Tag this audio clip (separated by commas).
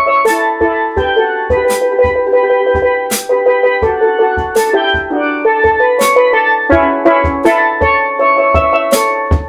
playing steelpan